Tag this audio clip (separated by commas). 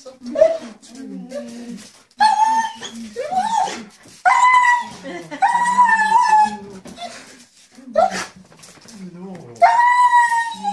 dog whimpering